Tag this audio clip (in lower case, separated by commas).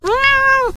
pets, cat, animal, meow